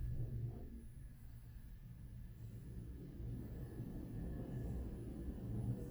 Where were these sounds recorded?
in an elevator